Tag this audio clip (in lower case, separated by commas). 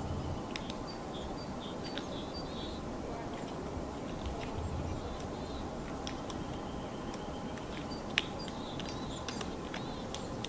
woodpecker pecking tree